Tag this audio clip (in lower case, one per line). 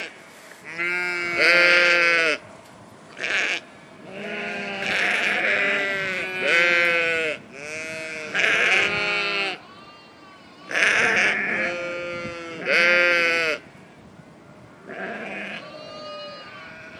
animal
livestock